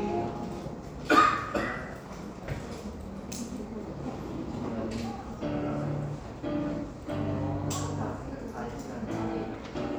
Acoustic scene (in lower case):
crowded indoor space